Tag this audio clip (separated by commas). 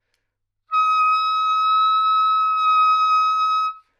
Wind instrument, Musical instrument, Music